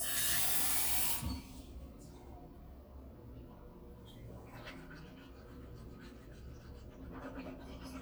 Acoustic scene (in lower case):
restroom